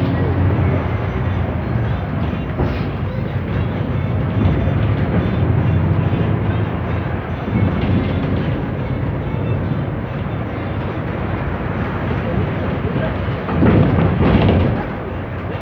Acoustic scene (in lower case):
bus